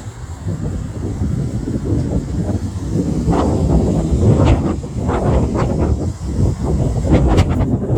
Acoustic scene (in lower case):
street